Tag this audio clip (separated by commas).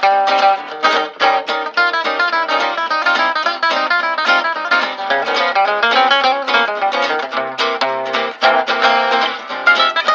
Pizzicato